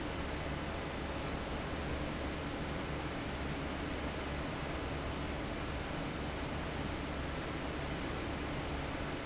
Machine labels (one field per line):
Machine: fan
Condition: abnormal